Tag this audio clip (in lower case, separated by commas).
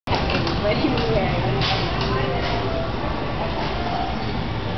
speech